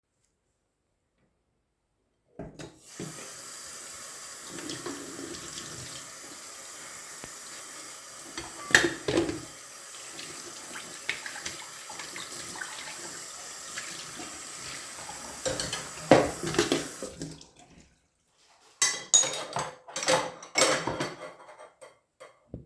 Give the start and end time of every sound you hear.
2.8s-17.9s: running water
8.6s-9.5s: cutlery and dishes
15.4s-17.1s: cutlery and dishes
18.7s-21.5s: cutlery and dishes

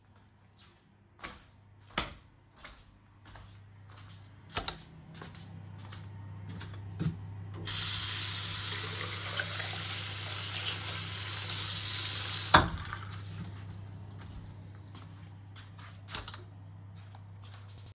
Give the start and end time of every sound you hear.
1.1s-7.4s: footsteps
7.7s-12.9s: running water
15.8s-16.6s: light switch

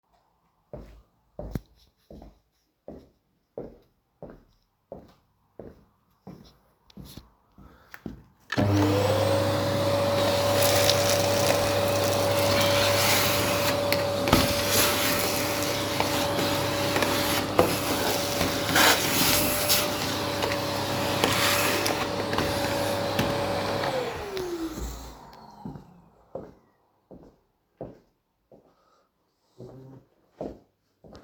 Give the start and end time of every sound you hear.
0.5s-8.2s: footsteps
8.4s-26.9s: vacuum cleaner
25.6s-31.2s: footsteps

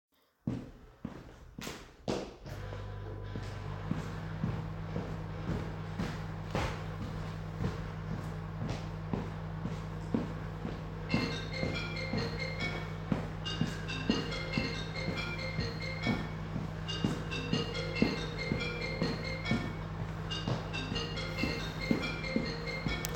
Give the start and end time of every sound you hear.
0.4s-23.1s: footsteps
2.5s-23.1s: microwave
11.1s-23.1s: phone ringing

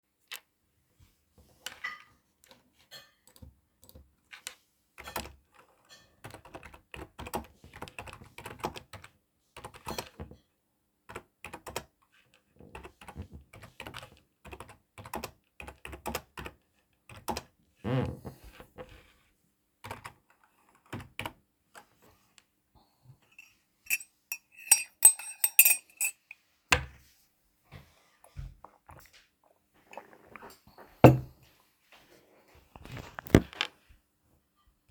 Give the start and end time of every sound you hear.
1.5s-6.2s: cutlery and dishes
4.2s-5.5s: keyboard typing
6.1s-17.8s: keyboard typing
9.5s-10.6s: cutlery and dishes
19.7s-21.5s: keyboard typing
23.2s-26.6s: cutlery and dishes
29.9s-31.6s: cutlery and dishes

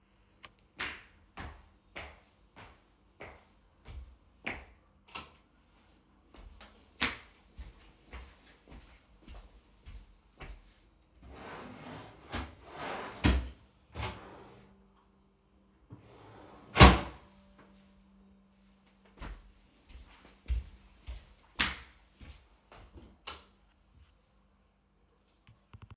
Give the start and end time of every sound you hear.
0.3s-4.8s: footsteps
4.8s-5.4s: light switch
6.0s-11.1s: footsteps
11.1s-15.1s: wardrobe or drawer
15.9s-17.5s: wardrobe or drawer
18.9s-23.1s: footsteps
22.9s-23.5s: light switch

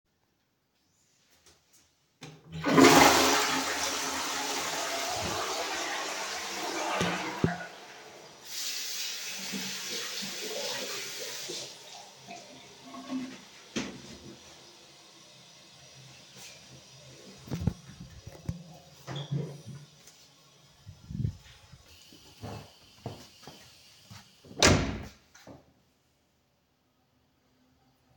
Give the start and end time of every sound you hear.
2.4s-7.9s: toilet flushing
8.4s-13.7s: running water
17.3s-20.1s: footsteps
19.0s-19.5s: door
21.0s-25.5s: footsteps
24.5s-25.3s: door

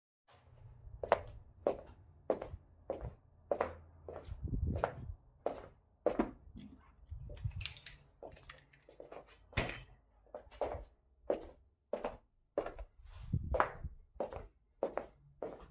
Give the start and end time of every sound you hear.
1.0s-6.5s: footsteps
7.1s-9.9s: keys
8.2s-15.7s: footsteps

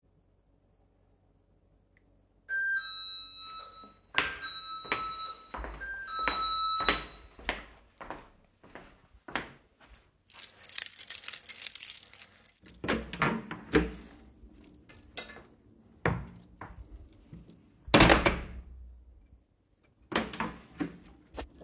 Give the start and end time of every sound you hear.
2.4s-7.5s: bell ringing
4.0s-10.1s: footsteps
10.1s-12.8s: keys
12.6s-14.2s: door
15.6s-17.1s: footsteps
17.6s-18.8s: door
19.7s-21.1s: light switch
20.1s-21.5s: door

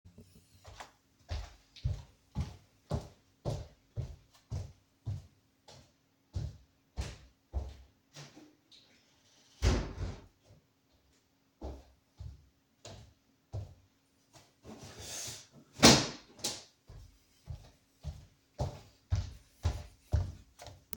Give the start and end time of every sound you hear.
0.6s-8.6s: footsteps
9.6s-10.2s: window
11.5s-14.5s: footsteps
17.4s-21.0s: footsteps

